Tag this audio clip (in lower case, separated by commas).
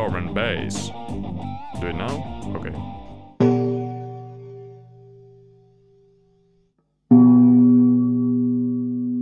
electric guitar, music, speech, bass guitar